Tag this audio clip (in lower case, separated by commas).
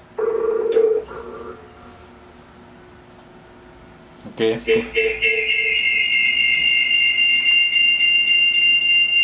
speech, inside a small room